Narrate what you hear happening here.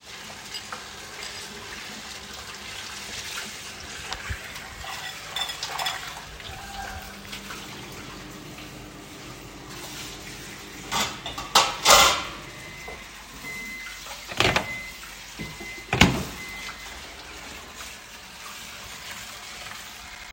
I started the microwave and then turned on the tap. While both sounds were active, I handled dishes and cutlery so all three target classes overlapped. The shared overlap was clearly audible within the scene.